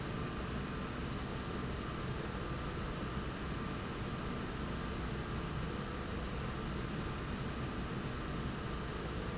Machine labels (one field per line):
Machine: slide rail